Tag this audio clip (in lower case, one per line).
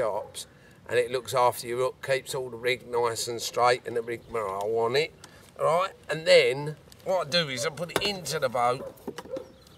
speech